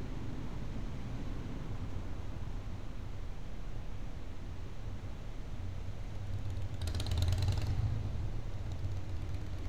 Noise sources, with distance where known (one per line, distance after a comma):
small-sounding engine